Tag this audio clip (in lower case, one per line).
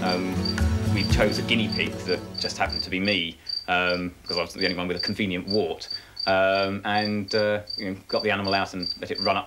insect
cricket